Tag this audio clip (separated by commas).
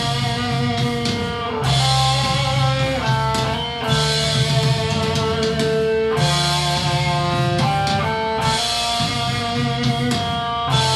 Musical instrument, Guitar, Plucked string instrument, Music, Electric guitar, Strum